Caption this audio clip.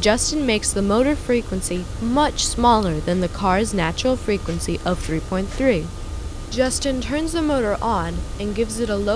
A woman speaking with distant, low frequency buzzing